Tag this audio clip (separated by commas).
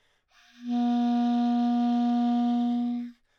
Music, Wind instrument, Musical instrument